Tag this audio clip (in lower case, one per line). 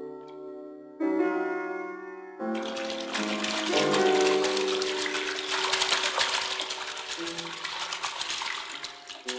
music
inside a large room or hall